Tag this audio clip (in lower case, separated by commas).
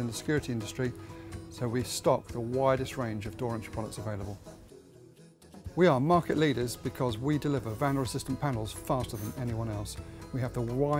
music, speech